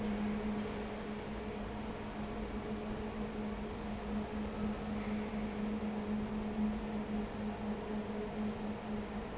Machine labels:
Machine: fan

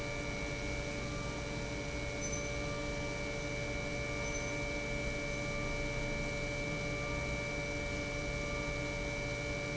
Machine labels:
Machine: pump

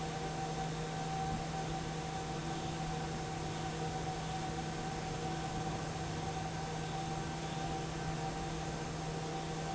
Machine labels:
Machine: fan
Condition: normal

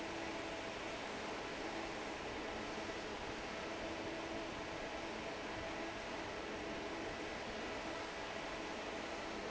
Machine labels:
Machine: fan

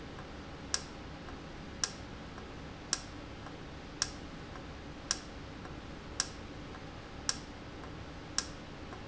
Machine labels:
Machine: valve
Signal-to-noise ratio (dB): 0 dB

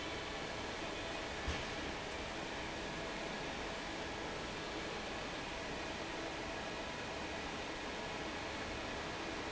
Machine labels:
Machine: fan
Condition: normal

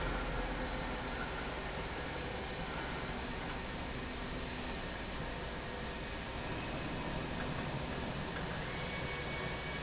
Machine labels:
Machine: slide rail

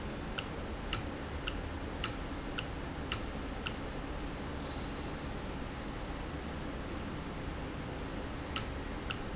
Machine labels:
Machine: valve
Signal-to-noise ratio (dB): -6 dB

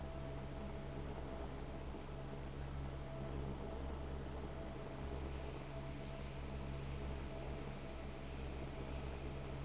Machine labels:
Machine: fan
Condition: abnormal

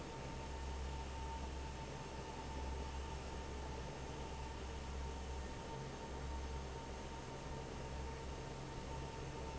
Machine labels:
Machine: fan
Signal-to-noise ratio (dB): 6 dB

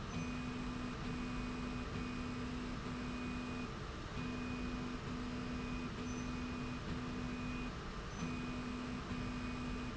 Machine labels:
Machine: slide rail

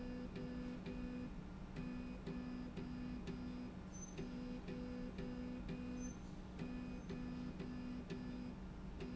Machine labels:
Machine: slide rail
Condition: normal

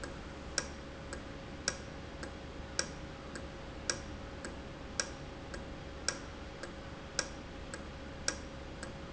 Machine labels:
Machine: valve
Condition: normal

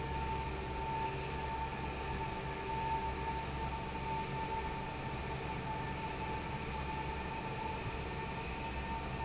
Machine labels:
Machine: fan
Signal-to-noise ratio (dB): -6 dB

